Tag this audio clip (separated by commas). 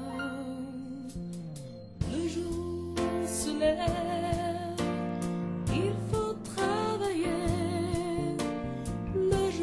Music